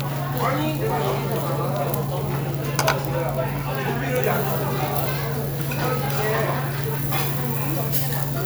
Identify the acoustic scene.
restaurant